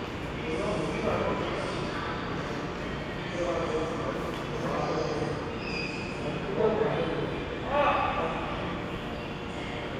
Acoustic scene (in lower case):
subway station